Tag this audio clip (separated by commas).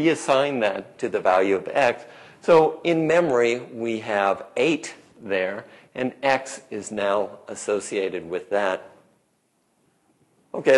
Speech